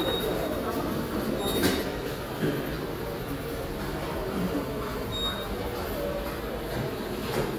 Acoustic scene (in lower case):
subway station